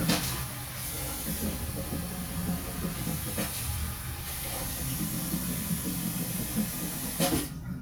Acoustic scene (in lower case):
restroom